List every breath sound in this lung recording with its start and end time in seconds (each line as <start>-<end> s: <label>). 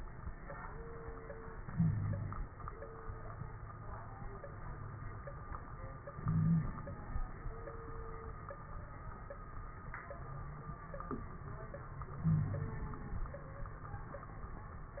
1.50-2.53 s: inhalation
1.70-2.53 s: wheeze
6.12-6.91 s: inhalation
6.19-6.70 s: wheeze
12.21-13.00 s: inhalation
12.23-12.80 s: wheeze